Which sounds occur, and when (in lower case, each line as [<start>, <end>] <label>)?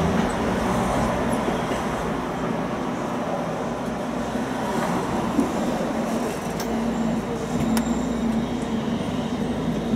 [0.00, 9.95] bus
[0.00, 9.95] traffic noise
[6.53, 6.63] tick
[6.83, 7.21] squeal
[7.41, 8.28] squeal
[7.71, 7.84] tick